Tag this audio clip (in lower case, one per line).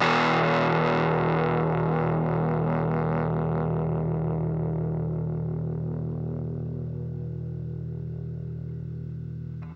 guitar
musical instrument
plucked string instrument
music